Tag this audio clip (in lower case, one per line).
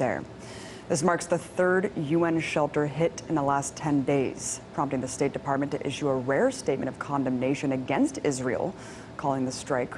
speech